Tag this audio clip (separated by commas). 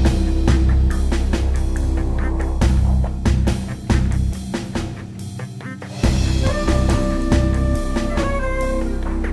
Music